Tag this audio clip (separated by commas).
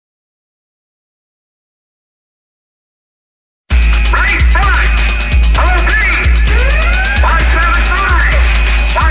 Speech, Music